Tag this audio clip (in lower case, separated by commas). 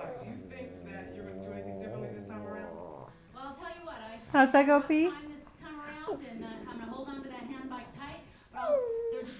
speech